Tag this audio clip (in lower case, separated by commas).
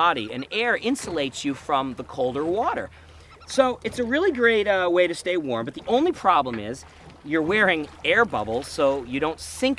speech